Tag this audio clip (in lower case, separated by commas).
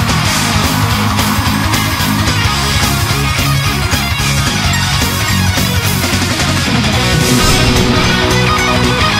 music